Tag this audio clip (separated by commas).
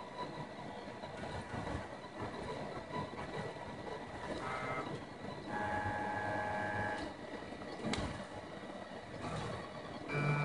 printer printing, Printer